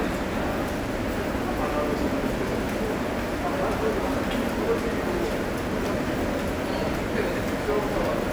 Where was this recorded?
in a subway station